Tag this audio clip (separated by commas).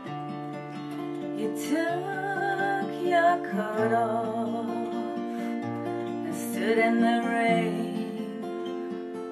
Acoustic guitar, Musical instrument, Guitar, Music, Plucked string instrument